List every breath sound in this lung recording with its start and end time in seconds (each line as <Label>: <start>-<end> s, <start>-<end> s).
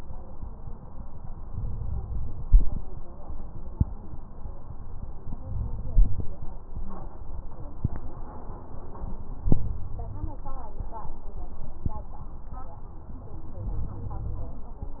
Inhalation: 1.50-2.92 s, 5.46-6.37 s, 9.42-10.40 s, 13.57-14.58 s